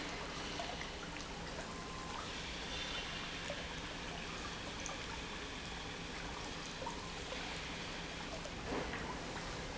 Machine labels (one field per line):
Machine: pump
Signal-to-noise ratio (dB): 0 dB